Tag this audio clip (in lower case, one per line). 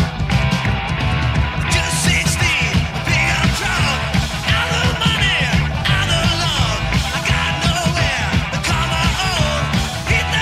music